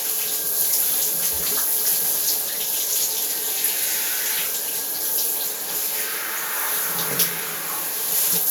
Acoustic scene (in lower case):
restroom